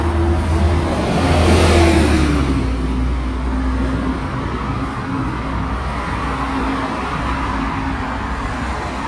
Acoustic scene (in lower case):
street